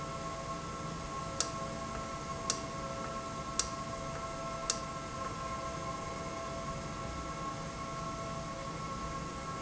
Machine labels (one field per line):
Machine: valve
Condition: normal